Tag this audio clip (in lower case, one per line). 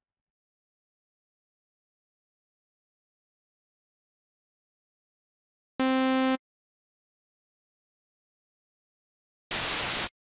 white noise
cacophony